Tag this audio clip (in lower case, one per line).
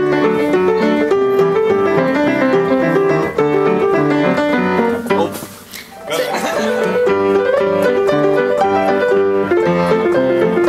music
musical instrument